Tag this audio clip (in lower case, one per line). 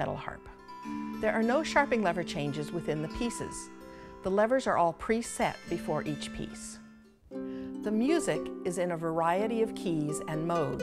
speech
music